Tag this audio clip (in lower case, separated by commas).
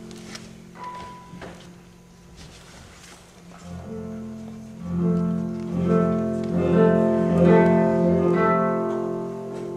music, strum, plucked string instrument, musical instrument, guitar